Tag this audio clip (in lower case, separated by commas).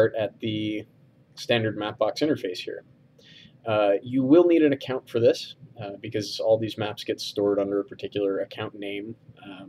speech